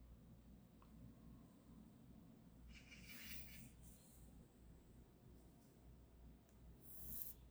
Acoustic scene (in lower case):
park